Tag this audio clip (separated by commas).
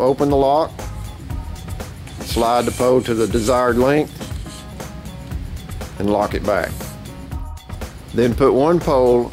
Music, Speech